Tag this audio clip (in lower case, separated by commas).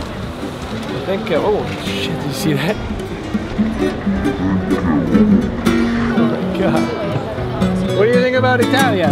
speech, music